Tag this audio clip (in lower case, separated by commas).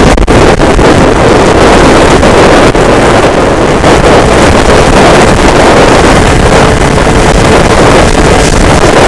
vehicle